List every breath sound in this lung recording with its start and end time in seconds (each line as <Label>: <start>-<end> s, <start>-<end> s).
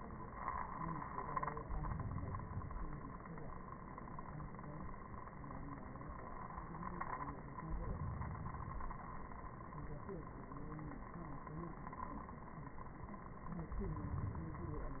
Inhalation: 1.50-3.00 s, 7.64-9.07 s, 13.64-15.00 s